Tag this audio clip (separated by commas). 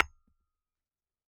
Tap, Glass